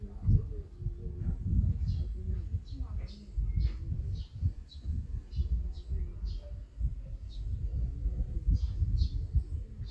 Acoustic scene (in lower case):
park